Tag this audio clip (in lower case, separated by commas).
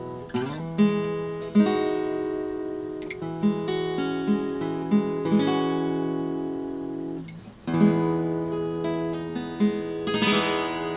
strum, plucked string instrument, musical instrument, music, acoustic guitar, guitar